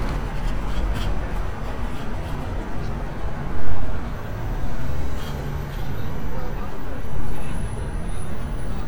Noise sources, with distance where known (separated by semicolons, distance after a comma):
engine of unclear size, near